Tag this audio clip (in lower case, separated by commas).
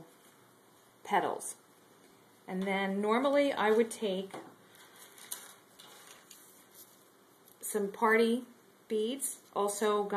speech